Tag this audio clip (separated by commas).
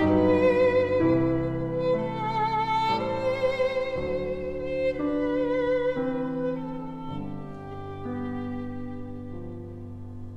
Music, Violin, Musical instrument